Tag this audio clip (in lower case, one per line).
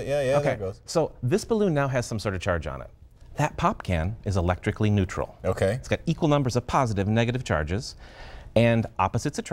speech